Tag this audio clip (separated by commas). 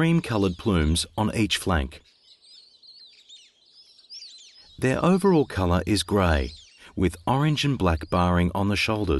bird song, Speech